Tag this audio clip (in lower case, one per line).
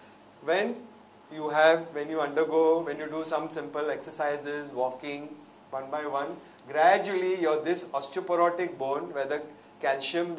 speech